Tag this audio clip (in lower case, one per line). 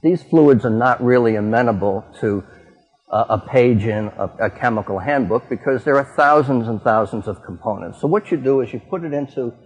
speech